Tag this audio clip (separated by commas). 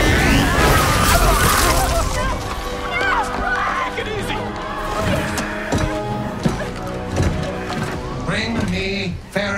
Music, Speech, Thump